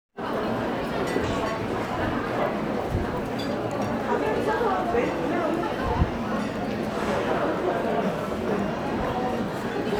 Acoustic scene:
crowded indoor space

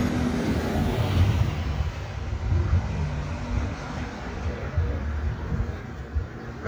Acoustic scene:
residential area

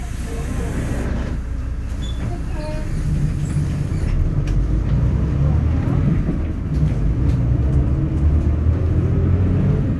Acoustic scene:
bus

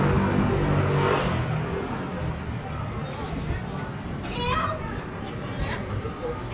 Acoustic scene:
street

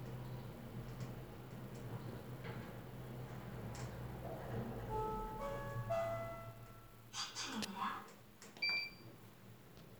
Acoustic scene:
elevator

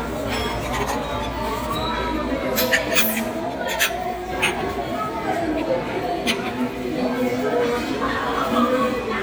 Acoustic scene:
restaurant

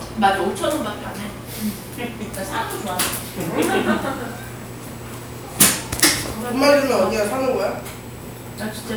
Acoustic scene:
crowded indoor space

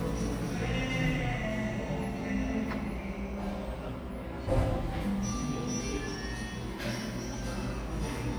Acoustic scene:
cafe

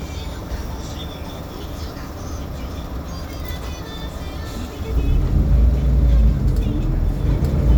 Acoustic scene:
bus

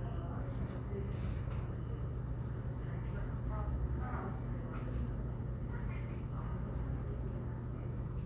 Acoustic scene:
crowded indoor space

